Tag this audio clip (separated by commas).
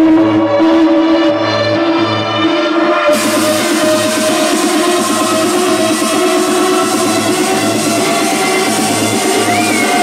Music, Sound effect, outside, urban or man-made